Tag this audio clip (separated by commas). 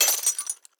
Shatter, Glass